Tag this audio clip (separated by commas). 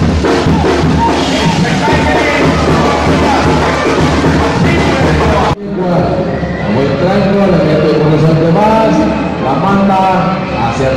Clip-clop, Animal, Music, Speech